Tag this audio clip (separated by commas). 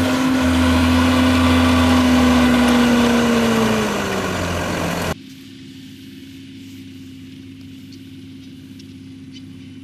Crackle